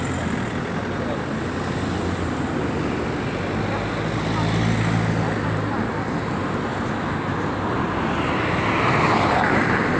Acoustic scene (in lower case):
street